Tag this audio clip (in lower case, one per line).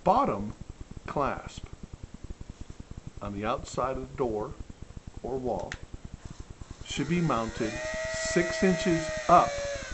speech